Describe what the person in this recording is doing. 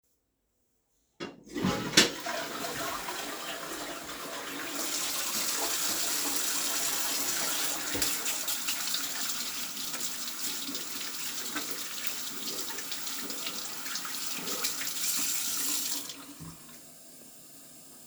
I flushed the toilet. At the same time, I washed my hands at the sink.